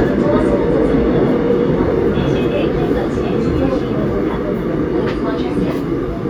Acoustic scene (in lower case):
subway train